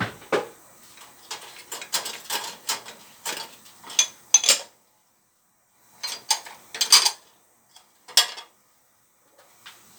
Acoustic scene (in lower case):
kitchen